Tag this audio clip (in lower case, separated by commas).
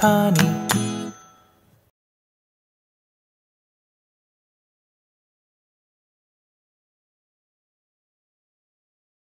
music